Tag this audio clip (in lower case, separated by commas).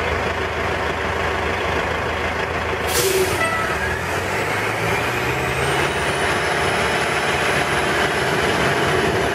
vroom, vehicle